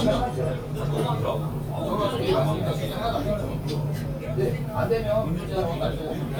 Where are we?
in a crowded indoor space